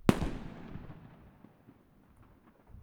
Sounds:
explosion, fireworks

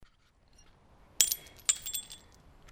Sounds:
shatter, glass, crushing

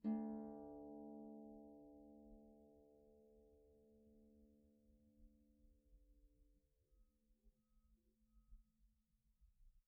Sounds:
musical instrument, music, harp

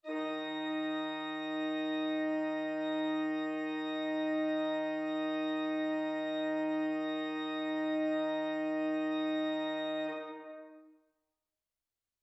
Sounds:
musical instrument, organ, keyboard (musical), music

